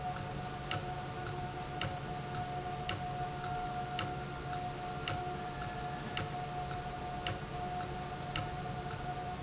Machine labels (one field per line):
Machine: valve